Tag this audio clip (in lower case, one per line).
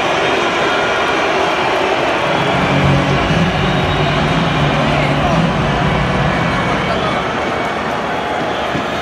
people booing